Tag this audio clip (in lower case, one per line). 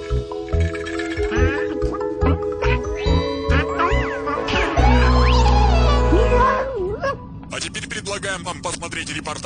speech
music